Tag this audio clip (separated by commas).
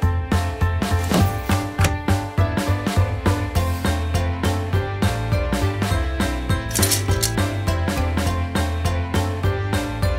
Music